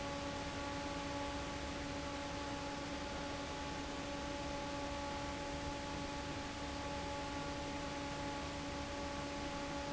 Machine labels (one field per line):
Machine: fan